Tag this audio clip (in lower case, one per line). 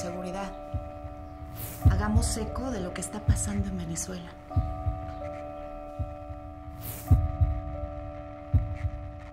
speech
music